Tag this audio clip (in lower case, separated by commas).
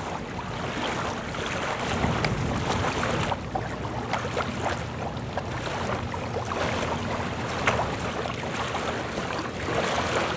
boat, kayak rowing, rowboat, vehicle